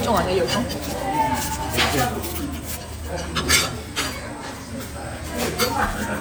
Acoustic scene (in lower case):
restaurant